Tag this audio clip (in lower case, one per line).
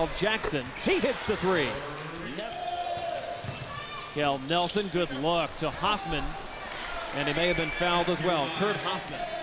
basketball bounce